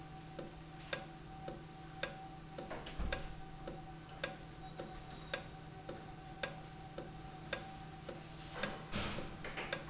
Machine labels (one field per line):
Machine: valve